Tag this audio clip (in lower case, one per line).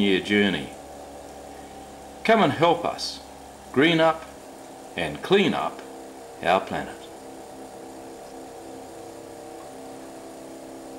speech